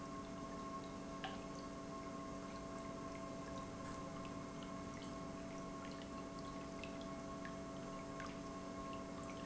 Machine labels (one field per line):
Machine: pump